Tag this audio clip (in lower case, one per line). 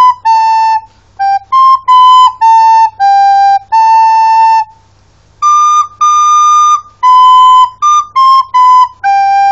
music
wind instrument
flute
inside a small room
musical instrument